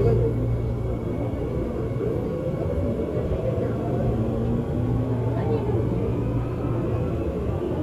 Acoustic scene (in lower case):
subway train